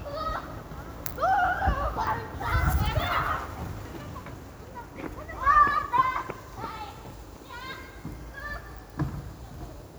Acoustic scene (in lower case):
residential area